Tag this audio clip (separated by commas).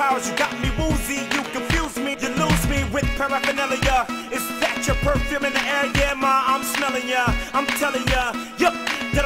Hip hop music, Music